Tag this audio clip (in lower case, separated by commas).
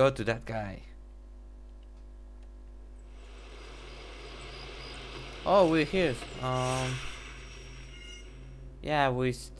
speech